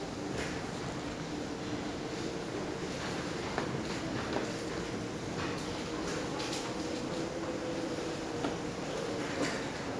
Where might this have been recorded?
in a subway station